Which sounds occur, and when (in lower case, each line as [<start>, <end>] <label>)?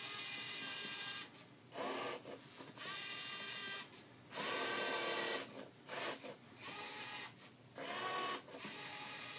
[0.00, 1.43] printer
[0.00, 9.35] mechanisms
[1.67, 2.34] printer
[2.21, 2.72] generic impact sounds
[2.67, 4.07] printer
[4.29, 5.68] printer
[5.82, 6.35] printer
[6.54, 7.53] printer
[7.69, 9.35] printer